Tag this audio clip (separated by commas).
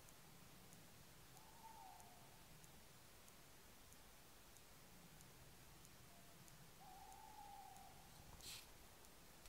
owl hooting